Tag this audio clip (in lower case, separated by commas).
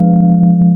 musical instrument, keyboard (musical), organ, music